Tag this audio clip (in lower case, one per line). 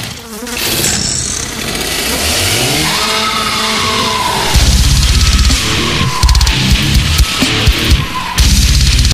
music
chainsaw